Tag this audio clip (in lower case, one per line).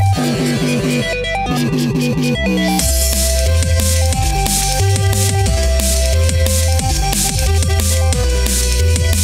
music